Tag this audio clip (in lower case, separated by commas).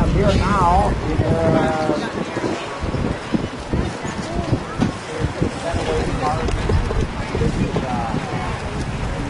speech